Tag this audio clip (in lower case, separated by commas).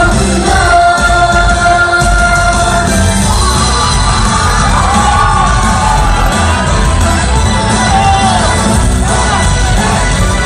music of asia, singing, music